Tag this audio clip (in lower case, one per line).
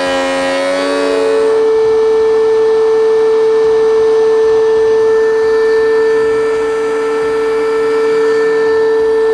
planing timber